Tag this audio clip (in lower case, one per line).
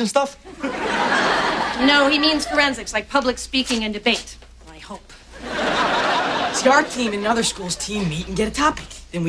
speech